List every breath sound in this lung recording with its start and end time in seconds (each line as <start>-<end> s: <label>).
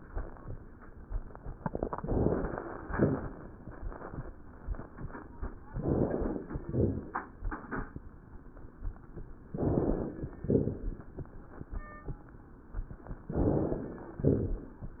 1.94-2.83 s: inhalation
1.94-2.83 s: crackles
2.87-3.34 s: exhalation
2.87-3.34 s: crackles
5.69-6.58 s: inhalation
5.69-6.58 s: crackles
6.66-7.14 s: exhalation
6.66-7.14 s: crackles
9.56-10.32 s: inhalation
10.46-10.93 s: exhalation
10.46-10.93 s: crackles
13.32-14.08 s: inhalation
14.27-14.74 s: exhalation
14.27-14.74 s: crackles